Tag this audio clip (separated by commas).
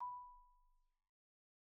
Mallet percussion, xylophone, Percussion, Musical instrument, Music